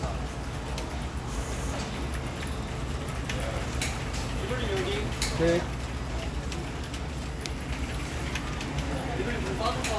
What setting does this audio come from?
crowded indoor space